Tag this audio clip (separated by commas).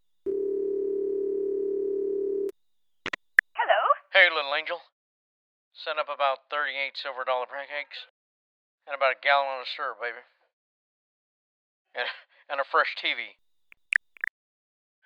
Alarm, Telephone